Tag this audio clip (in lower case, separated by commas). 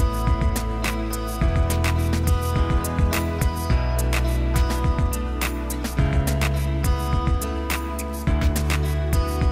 music